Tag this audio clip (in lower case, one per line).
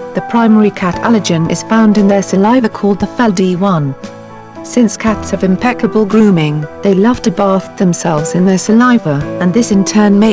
speech
music